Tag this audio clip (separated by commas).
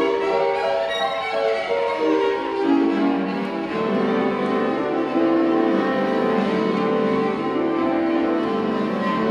Cello, Bowed string instrument